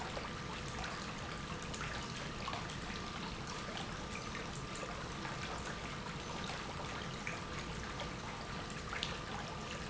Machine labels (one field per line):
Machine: pump